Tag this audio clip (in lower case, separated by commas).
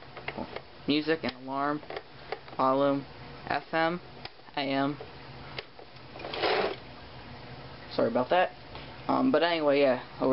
speech